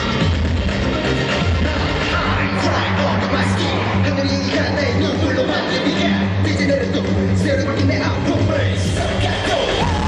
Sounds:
music
inside a large room or hall
singing

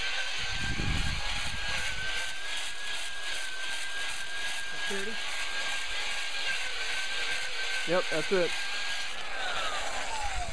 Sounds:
speech
outside, rural or natural

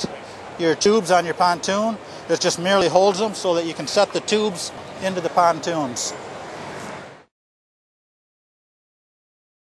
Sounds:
speech

